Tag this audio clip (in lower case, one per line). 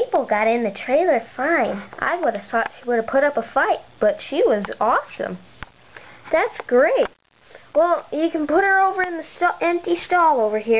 speech